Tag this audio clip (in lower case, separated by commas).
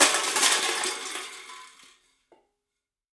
crushing